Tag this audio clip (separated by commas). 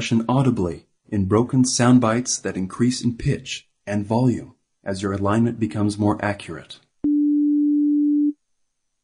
Busy signal, Speech